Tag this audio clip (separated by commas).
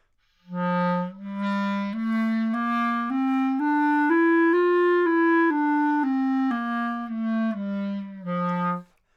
Musical instrument, Music, Wind instrument